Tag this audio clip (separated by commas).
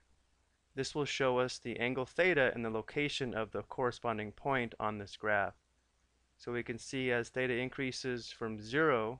Speech